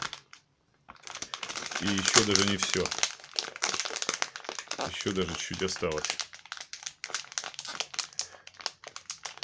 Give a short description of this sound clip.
Man in foreign language speaking as he crinkles some type of material